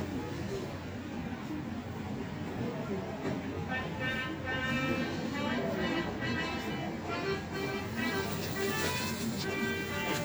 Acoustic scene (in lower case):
subway station